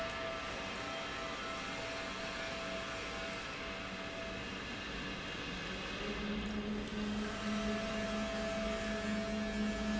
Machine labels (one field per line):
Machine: pump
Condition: normal